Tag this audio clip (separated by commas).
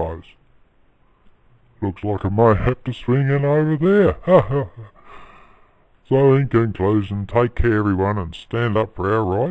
Speech